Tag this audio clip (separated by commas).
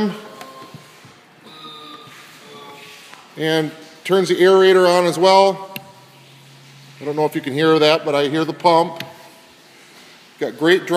Speech